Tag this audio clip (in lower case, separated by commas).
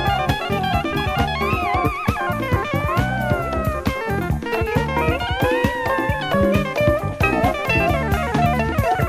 music